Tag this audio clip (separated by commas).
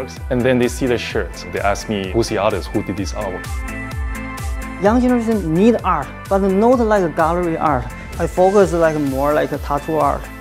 Speech, Music